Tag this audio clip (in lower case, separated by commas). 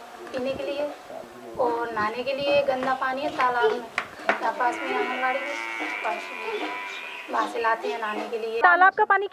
speech